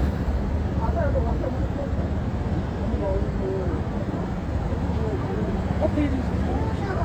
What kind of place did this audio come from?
street